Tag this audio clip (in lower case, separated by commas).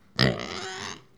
animal, livestock